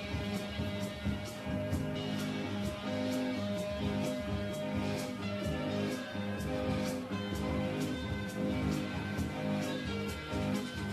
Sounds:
Music

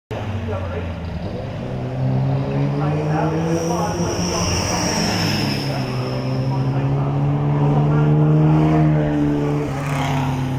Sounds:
Speech, outside, urban or man-made, Vehicle, Race car, Car

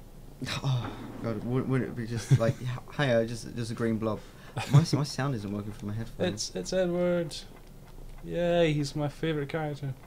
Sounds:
Speech

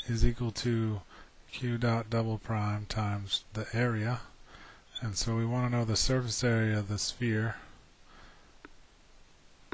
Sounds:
Speech

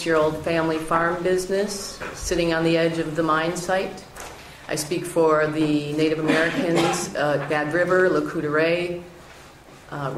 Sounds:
Speech

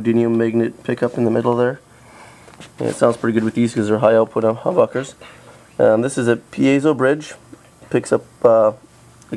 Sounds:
Speech

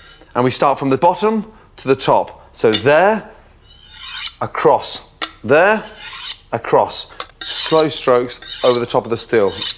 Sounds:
sharpen knife

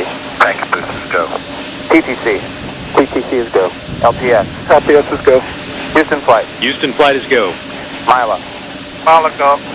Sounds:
Speech

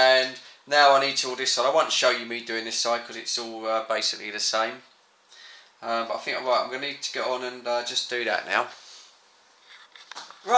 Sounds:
inside a small room, Speech

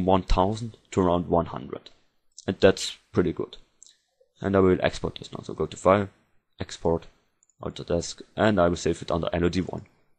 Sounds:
Speech

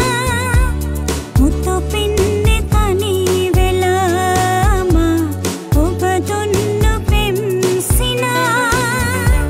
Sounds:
Music

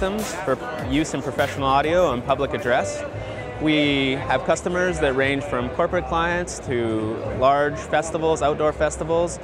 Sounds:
Music, Speech

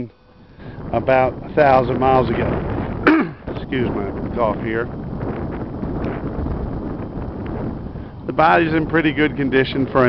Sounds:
swish, Speech

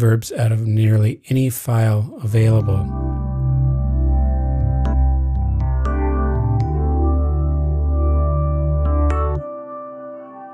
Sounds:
Speech, Synthesizer, Music

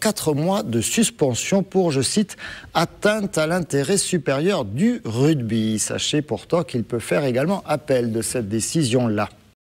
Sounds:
Speech

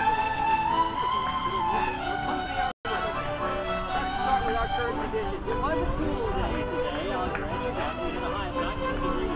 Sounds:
Musical instrument, Music, Speech, Violin

